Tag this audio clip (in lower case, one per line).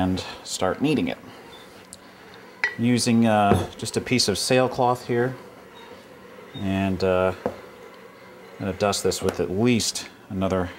inside a small room
speech